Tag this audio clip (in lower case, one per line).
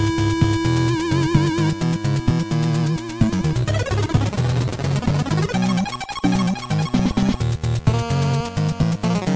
video game music
music
soundtrack music
background music